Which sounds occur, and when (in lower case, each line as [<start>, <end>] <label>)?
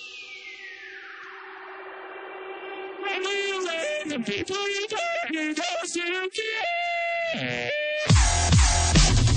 [0.00, 9.35] music
[1.17, 1.27] tick
[2.99, 8.06] male singing